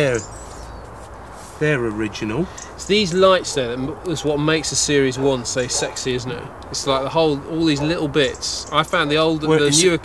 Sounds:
speech

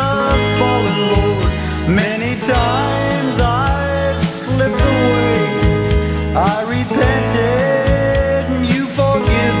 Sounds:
rhythm and blues, jazz, music, country

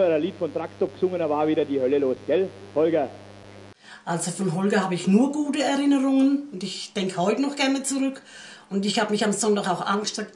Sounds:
speech

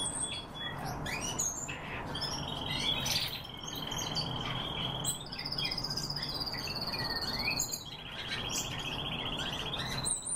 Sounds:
barn swallow calling

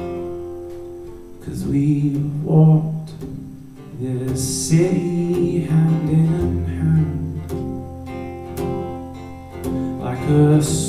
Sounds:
music, independent music

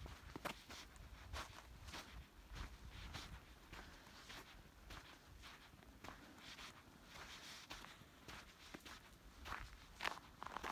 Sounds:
footsteps on snow

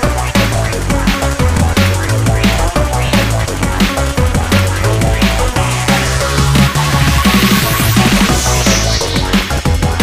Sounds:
drum and bass

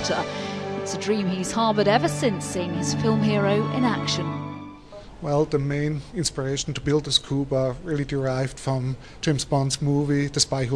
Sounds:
speech, music

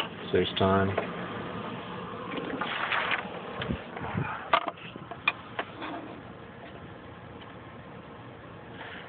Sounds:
speech

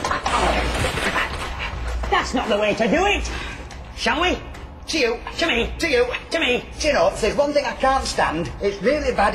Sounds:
speech

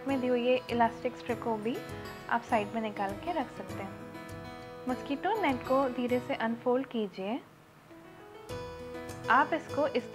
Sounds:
music, speech

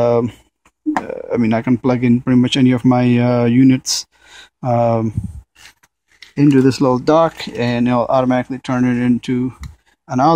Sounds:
speech

